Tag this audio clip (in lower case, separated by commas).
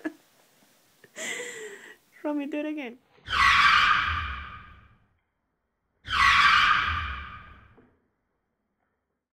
speech